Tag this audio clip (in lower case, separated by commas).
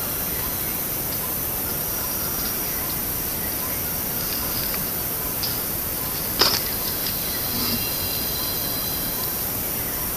chimpanzee pant-hooting